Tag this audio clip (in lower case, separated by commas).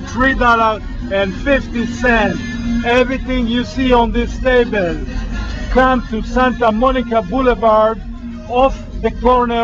speech, music